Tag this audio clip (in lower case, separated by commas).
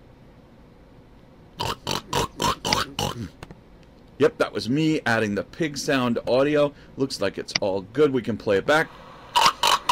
speech